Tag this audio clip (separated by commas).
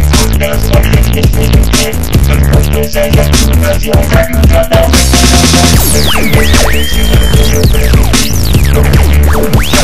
Sampler, Dubstep, Music, Electronic music